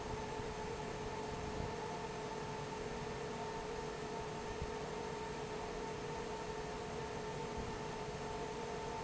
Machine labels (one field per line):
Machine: fan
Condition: normal